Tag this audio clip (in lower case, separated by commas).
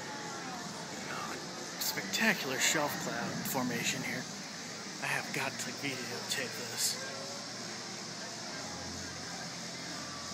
wind noise (microphone), wind